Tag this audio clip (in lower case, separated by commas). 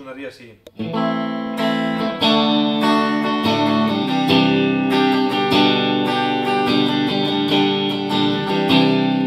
speech, musical instrument, strum, guitar, music